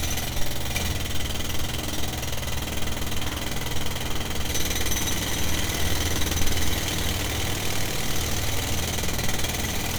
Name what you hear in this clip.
unidentified impact machinery